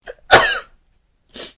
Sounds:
sneeze, cough, respiratory sounds

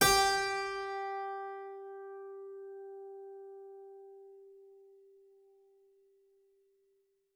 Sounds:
music, musical instrument, keyboard (musical)

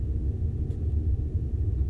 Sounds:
wind

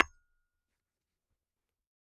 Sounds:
tools, hammer, tap

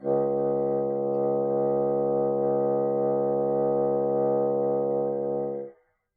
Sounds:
music, wind instrument, musical instrument

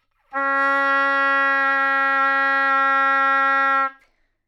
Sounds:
musical instrument, wind instrument, music

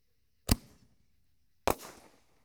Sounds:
fireworks, explosion

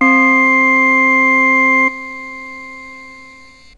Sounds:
keyboard (musical), musical instrument, music

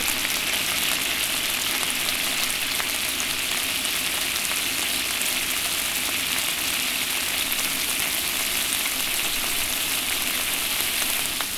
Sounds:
frying (food), domestic sounds

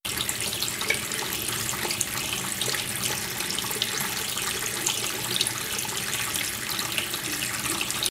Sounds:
home sounds, water tap

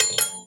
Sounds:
silverware, dishes, pots and pans, home sounds

